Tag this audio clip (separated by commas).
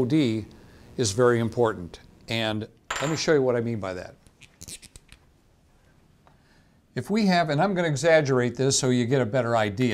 Speech